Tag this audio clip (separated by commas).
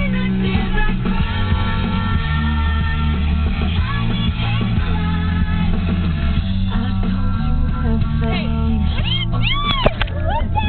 Speech, Female singing, Music